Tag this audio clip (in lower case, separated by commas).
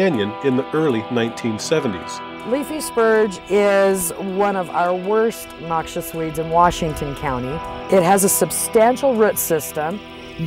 music, speech